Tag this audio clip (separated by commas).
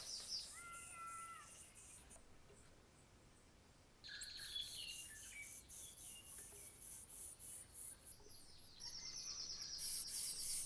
Insect